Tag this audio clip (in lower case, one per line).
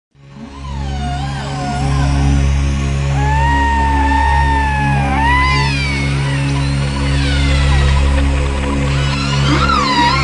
music